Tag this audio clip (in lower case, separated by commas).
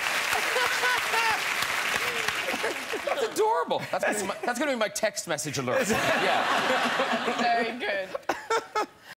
speech